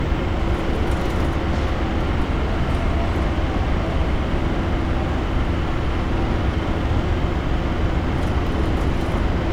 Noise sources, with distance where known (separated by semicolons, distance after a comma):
unidentified impact machinery